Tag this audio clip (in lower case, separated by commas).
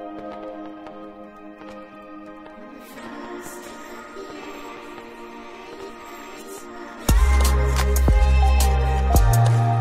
music